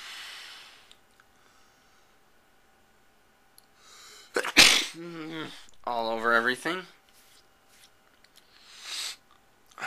A man sneezes all over everything